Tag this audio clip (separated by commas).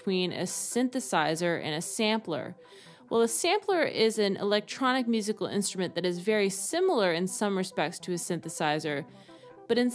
Music, Speech